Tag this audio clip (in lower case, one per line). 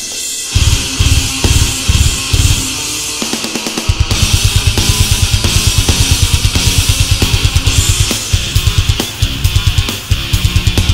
music